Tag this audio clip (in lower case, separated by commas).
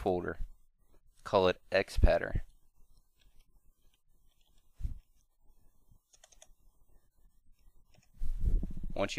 speech